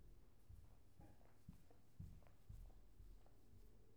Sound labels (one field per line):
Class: footsteps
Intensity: low